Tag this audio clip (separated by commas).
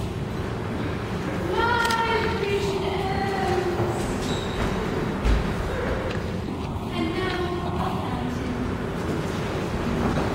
Speech